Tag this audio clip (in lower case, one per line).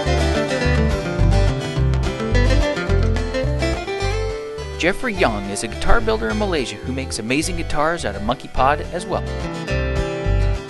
speech
music